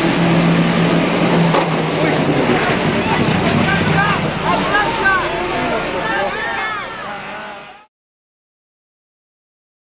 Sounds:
Car passing by

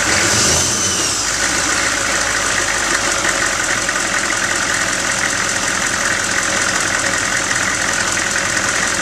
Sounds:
Engine

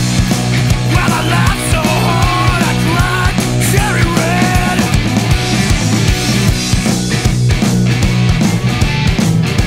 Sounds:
Grunge

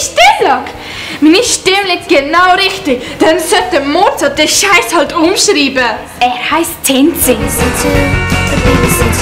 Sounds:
Speech, Music

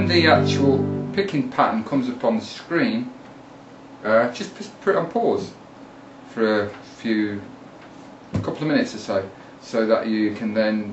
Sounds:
Strum, Music, Musical instrument, Plucked string instrument, Speech, Guitar

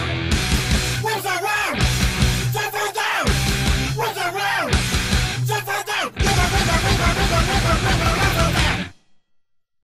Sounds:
Music

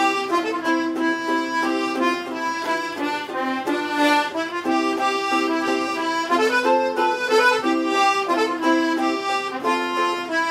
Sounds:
Accordion, playing accordion

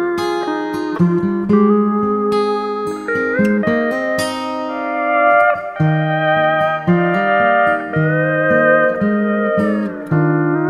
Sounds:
Music, Steel guitar

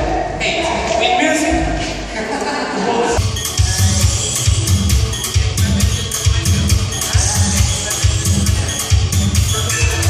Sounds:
Speech, Music, inside a large room or hall

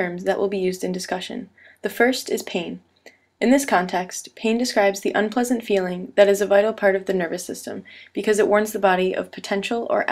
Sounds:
Speech

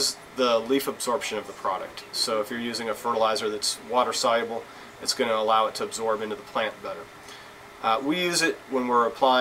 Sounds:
Speech

